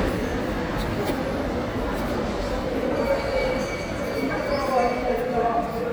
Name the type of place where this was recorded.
subway station